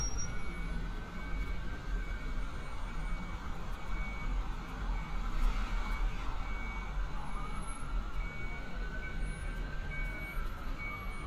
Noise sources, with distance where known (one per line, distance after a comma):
siren, far
reverse beeper, near